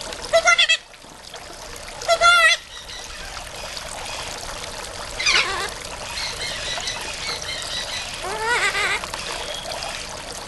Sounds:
outside, rural or natural, Bird

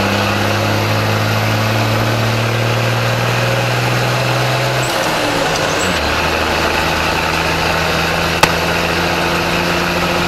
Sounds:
Mechanisms

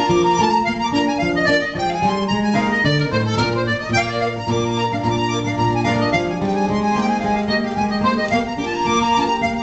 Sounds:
Musical instrument, Music, Accordion

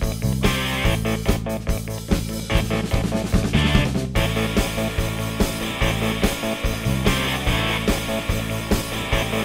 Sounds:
Music

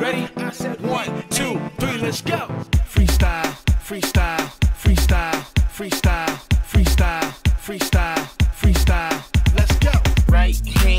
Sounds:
Singing, Music

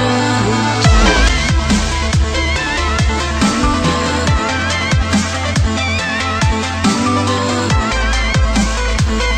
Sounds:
Music, Electronic music

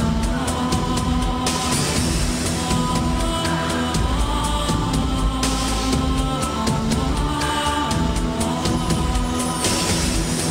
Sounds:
Music

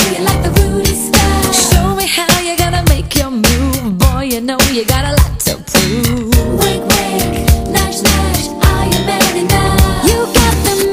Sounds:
Funk

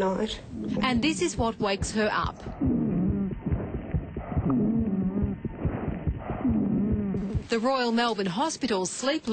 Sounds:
Speech

